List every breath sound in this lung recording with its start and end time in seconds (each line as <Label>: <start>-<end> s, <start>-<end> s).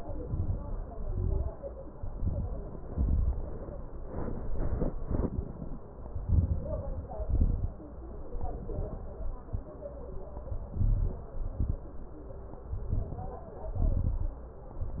Inhalation: 0.19-0.81 s, 1.94-2.68 s, 4.12-4.86 s, 6.16-6.89 s, 8.13-8.87 s, 10.68-11.36 s, 12.77-13.45 s
Exhalation: 0.89-1.52 s, 2.89-3.63 s, 4.96-5.70 s, 7.05-7.79 s, 8.89-9.63 s, 11.38-12.06 s, 13.70-14.38 s
Crackles: 0.19-0.83 s, 0.87-1.52 s, 1.92-2.66 s, 2.87-3.61 s, 4.12-4.86 s, 4.94-5.68 s, 6.16-6.89 s, 7.07-7.81 s, 8.13-8.87 s, 8.89-9.63 s, 10.66-11.34 s, 11.36-12.04 s, 12.77-13.45 s, 13.70-14.38 s